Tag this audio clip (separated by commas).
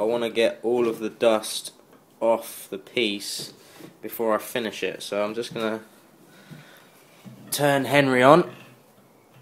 Blender, inside a small room, Speech, Tools